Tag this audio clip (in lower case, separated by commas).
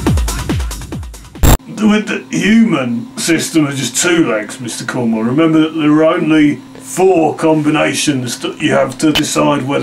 speech, techno, music